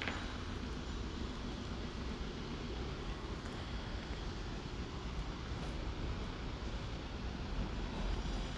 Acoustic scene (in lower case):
residential area